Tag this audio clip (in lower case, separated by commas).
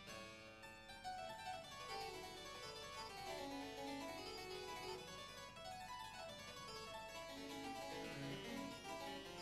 music, harpsichord, musical instrument